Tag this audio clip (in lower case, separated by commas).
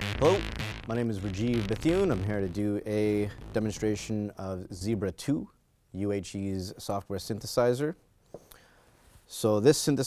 sampler, speech, music